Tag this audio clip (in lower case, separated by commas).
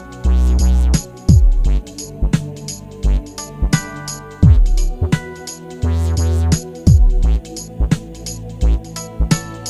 music